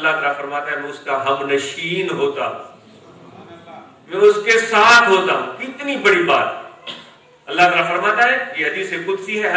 A man speaks into a microphone